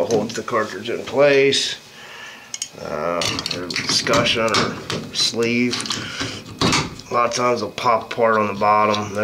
Male talking while loud clicking and tapping and in the background